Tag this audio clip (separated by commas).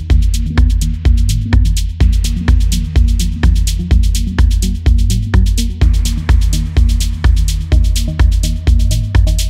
Music